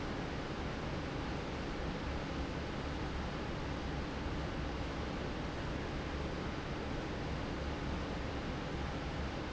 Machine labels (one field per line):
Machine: fan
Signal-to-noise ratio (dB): -6 dB